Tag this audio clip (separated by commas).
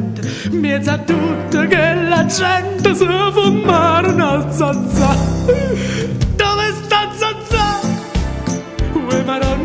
Music